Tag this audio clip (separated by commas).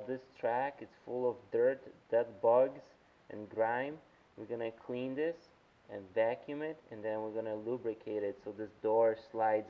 Speech